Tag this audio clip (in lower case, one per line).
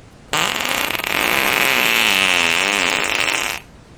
fart